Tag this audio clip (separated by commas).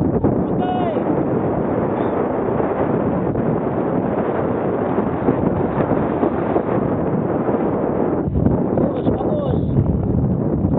Speech